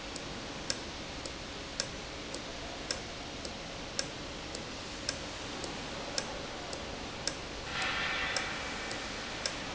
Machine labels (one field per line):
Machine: valve